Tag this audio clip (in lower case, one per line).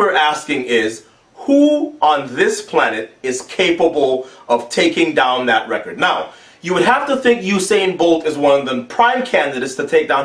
speech